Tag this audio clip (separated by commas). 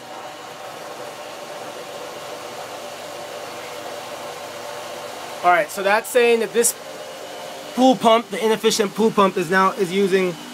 Speech